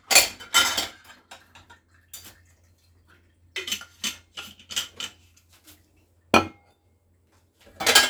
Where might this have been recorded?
in a kitchen